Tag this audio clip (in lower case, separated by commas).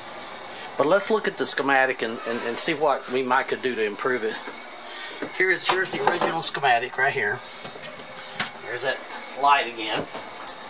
speech